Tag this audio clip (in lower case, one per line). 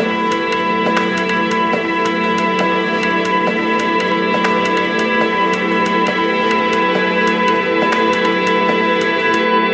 music